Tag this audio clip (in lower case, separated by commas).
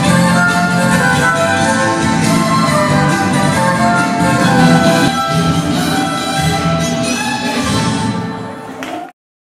musical instrument, music, fiddle